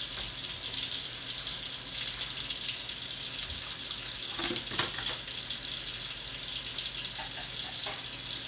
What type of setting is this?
kitchen